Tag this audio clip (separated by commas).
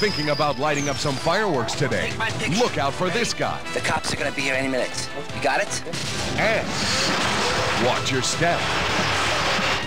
Music, Speech